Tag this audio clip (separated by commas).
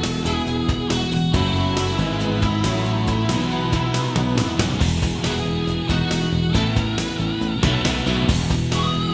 Music